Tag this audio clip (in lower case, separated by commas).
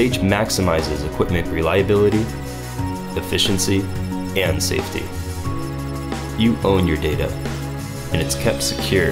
music, speech